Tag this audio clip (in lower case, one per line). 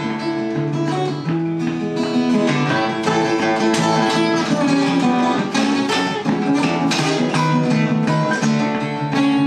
plucked string instrument
guitar
musical instrument
music
strum